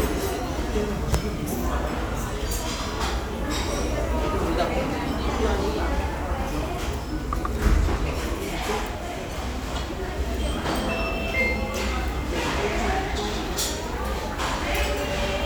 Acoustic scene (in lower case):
restaurant